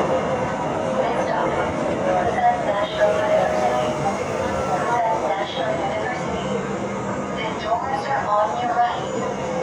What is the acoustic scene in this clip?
subway train